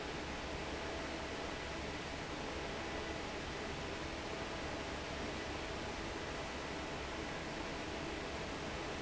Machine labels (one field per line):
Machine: fan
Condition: normal